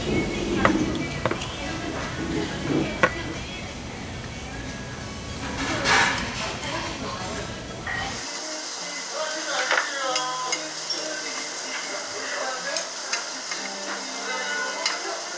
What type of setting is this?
restaurant